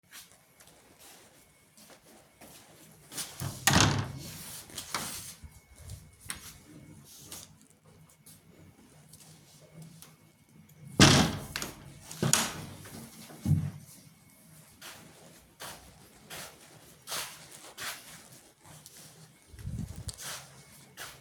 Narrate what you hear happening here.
walk toward the door, open the door then close the door